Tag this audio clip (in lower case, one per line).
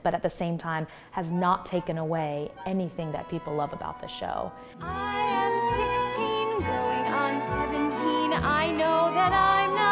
speech
music